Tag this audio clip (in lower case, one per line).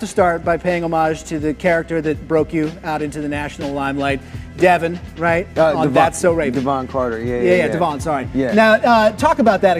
music
speech